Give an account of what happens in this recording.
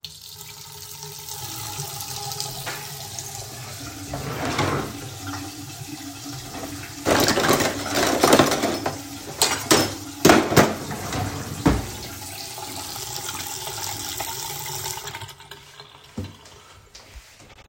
I washed the dishes and while doing so I opened the drawer to take some cutlery out.